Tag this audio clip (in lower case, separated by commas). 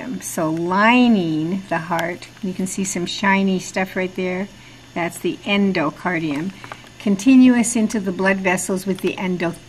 speech